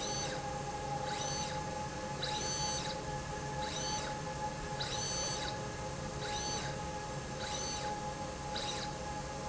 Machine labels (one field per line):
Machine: slide rail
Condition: abnormal